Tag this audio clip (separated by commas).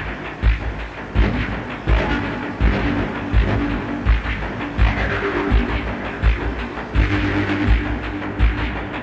Throbbing